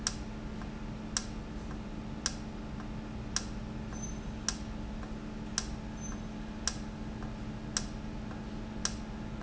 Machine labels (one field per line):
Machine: valve